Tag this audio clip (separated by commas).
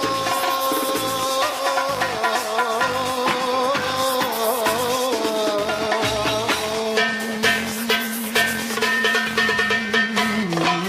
Folk music, Music